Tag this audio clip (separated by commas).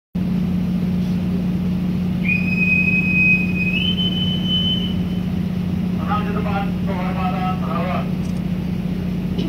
Boat, Ship